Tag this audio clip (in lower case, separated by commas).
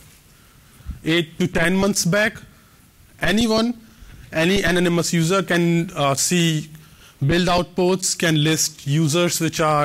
speech, narration